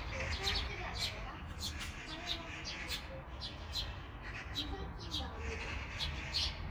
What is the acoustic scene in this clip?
park